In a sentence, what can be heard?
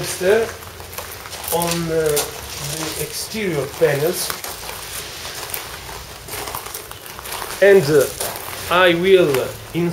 A man talking and walking on leaves